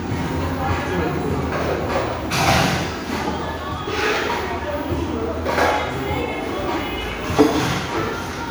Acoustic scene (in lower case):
crowded indoor space